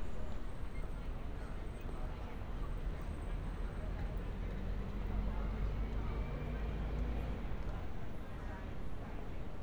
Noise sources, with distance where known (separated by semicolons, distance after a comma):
person or small group talking